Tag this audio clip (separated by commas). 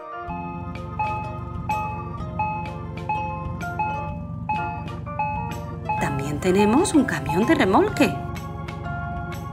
ice cream truck